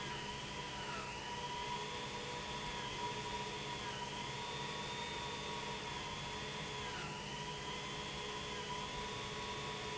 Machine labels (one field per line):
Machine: pump